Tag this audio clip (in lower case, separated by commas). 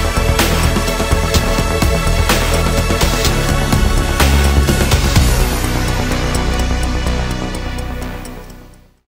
music